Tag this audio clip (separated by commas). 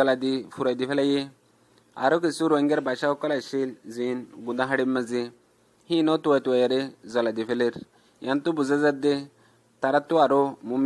Speech